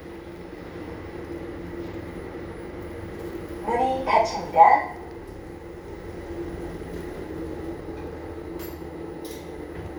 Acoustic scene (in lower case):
elevator